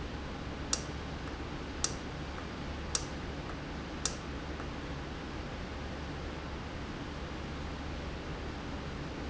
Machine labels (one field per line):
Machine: valve